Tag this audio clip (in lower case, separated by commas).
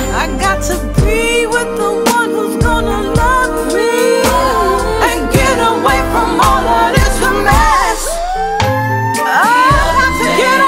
pop music, music